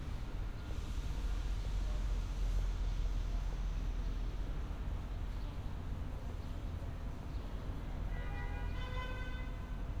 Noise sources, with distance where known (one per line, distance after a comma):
car horn, near